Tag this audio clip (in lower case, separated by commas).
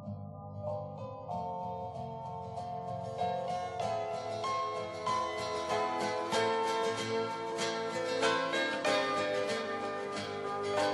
country